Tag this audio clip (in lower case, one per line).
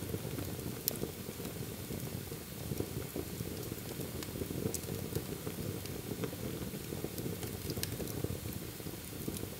fire